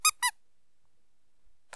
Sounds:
squeak

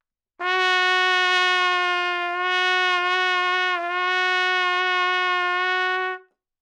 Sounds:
trumpet
musical instrument
music
brass instrument

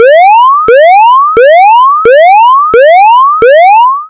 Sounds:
alarm

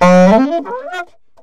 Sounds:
woodwind instrument
musical instrument
music

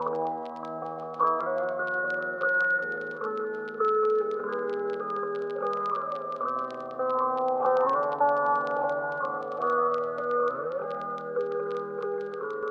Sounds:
musical instrument
plucked string instrument
music
guitar

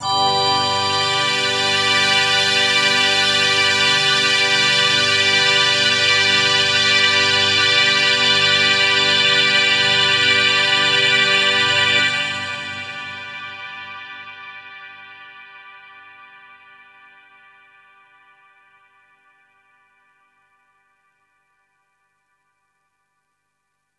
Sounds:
music
musical instrument

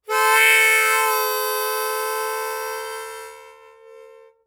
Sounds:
music
musical instrument
harmonica

